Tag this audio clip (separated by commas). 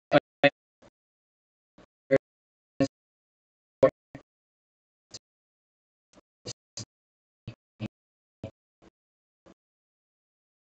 Speech